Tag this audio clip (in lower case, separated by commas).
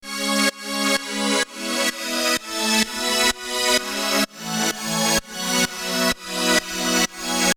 musical instrument, music, keyboard (musical)